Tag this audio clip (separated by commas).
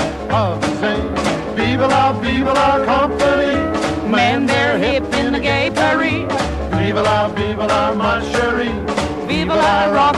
Music, Rock and roll